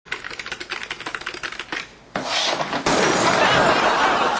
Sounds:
typewriter

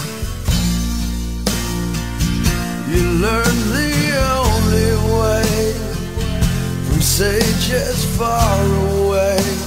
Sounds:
music

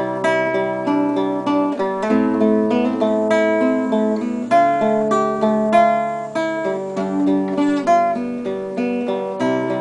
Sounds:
guitar, strum, musical instrument, plucked string instrument, acoustic guitar, music

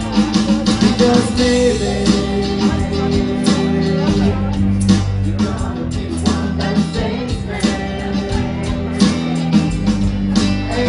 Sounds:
guitar, speech, music, musical instrument

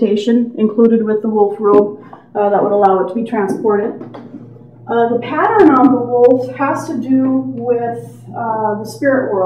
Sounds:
speech

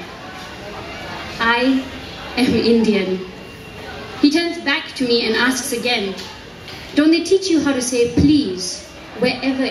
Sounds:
speech

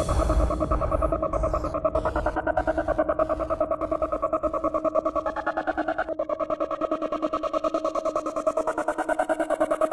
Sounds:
trance music, electronic music, music

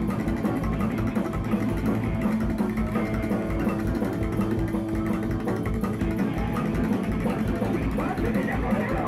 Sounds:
music, speech

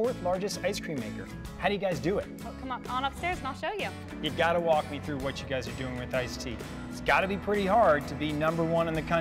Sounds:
speech, music

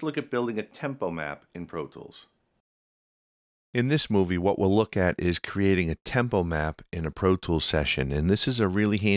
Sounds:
speech

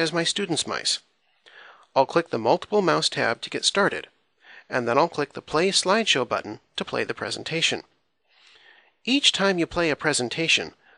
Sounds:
speech

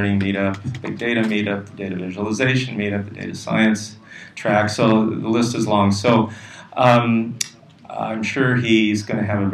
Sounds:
speech

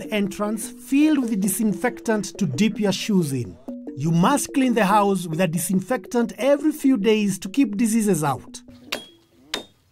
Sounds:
speech, narration, music

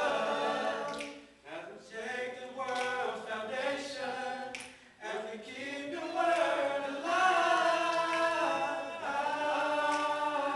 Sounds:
choir, singing, vocal music, a capella

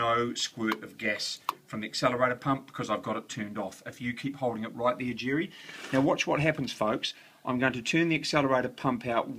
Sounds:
speech

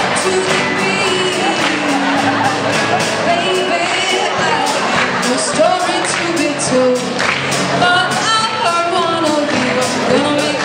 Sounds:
singing, music

